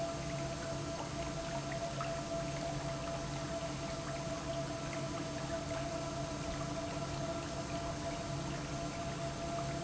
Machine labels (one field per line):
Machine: pump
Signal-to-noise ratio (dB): -6 dB